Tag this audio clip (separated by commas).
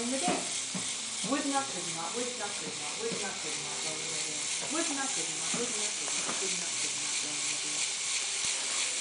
Speech, Hiss